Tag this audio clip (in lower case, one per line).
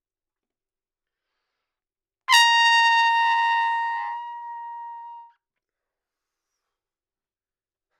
trumpet
brass instrument
musical instrument
music